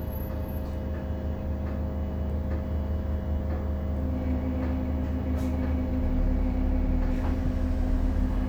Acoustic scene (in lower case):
bus